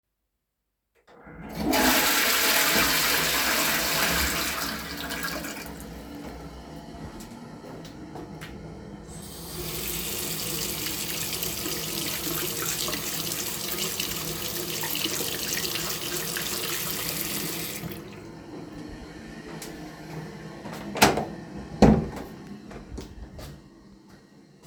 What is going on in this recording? I flushed the toilet and then washed my hands. Finally, I opened the toilet door and walked out.